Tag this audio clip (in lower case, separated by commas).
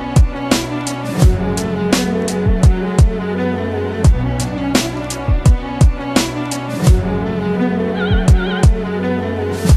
music